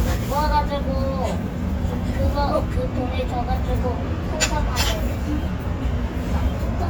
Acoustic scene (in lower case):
restaurant